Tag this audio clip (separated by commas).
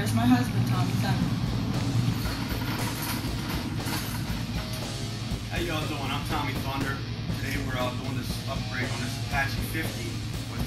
Music, Speech